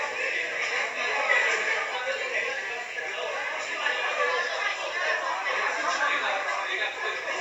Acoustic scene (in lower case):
crowded indoor space